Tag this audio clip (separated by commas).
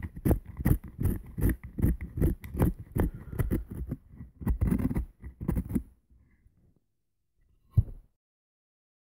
Wood